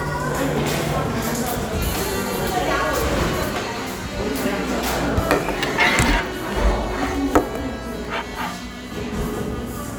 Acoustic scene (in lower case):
cafe